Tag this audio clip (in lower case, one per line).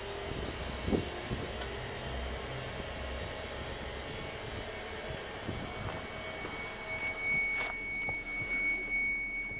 reversing beeps